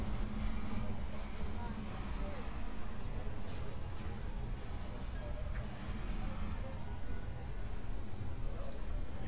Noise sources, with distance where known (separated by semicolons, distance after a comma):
engine of unclear size, far; person or small group talking